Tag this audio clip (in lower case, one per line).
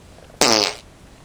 fart